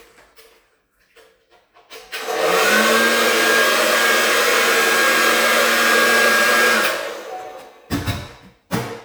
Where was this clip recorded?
in a restroom